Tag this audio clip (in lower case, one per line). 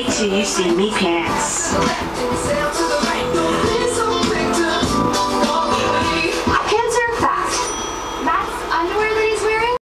music